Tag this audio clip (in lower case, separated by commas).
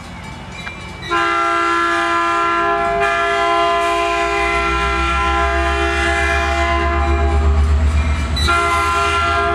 steam whistle